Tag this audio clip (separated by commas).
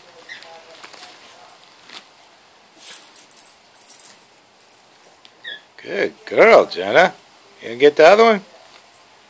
Speech